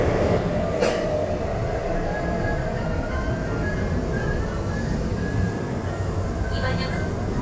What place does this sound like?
subway train